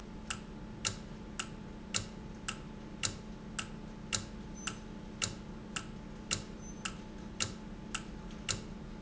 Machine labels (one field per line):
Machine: valve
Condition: normal